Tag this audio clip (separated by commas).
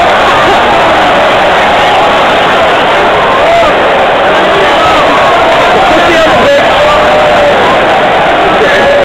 Speech